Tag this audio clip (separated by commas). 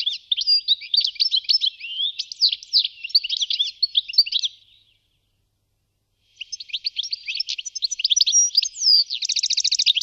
Animal, outside, rural or natural